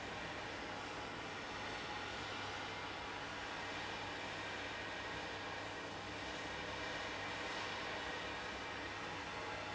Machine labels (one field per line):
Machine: fan